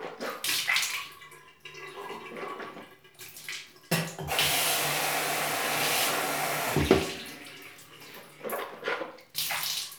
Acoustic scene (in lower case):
restroom